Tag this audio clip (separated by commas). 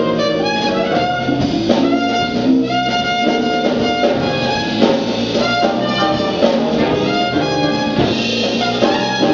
Blues, Musical instrument, Music, Trumpet